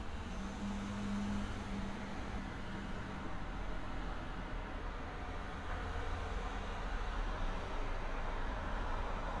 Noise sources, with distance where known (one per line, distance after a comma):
engine of unclear size